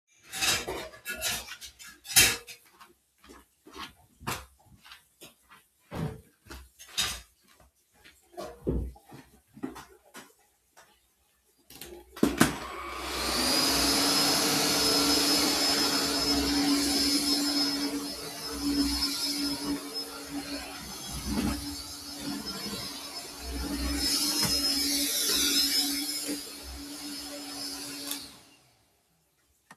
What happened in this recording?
Water was running from the tap while I was putting dishes in the kitchen. Then I went to get the vacuum cleaner and started vacuuming the kitchen floor.